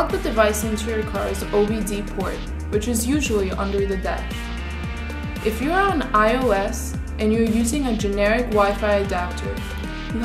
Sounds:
music
speech

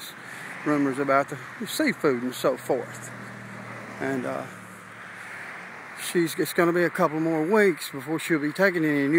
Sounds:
speech

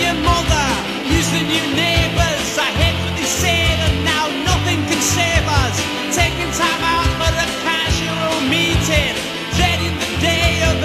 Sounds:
music

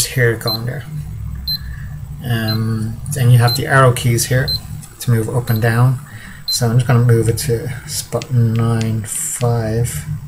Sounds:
speech

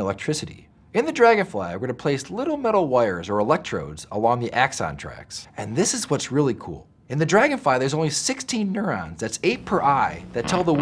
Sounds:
mosquito buzzing

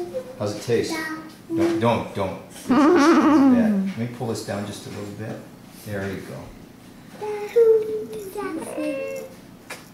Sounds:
speech

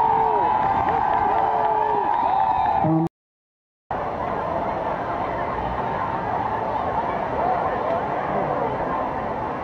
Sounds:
speech

